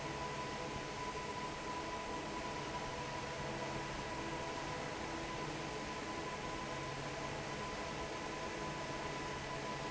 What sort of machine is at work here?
fan